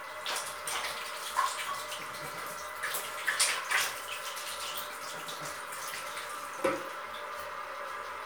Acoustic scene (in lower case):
restroom